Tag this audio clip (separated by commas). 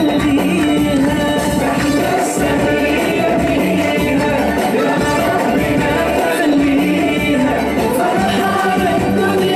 Tambourine, Music